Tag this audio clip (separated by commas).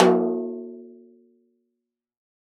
Snare drum, Drum, Music, Musical instrument, Percussion